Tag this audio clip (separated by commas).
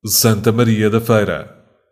Human voice